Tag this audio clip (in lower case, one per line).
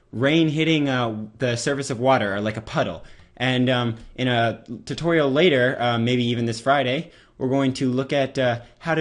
speech